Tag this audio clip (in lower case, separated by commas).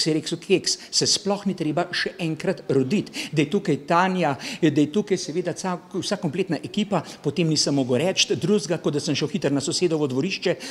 speech